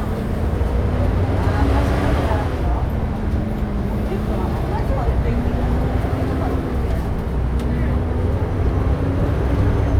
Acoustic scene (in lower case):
bus